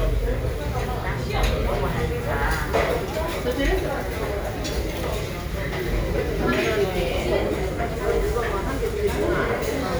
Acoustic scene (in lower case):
crowded indoor space